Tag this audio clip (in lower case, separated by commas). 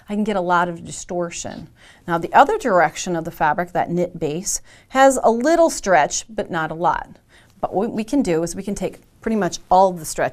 speech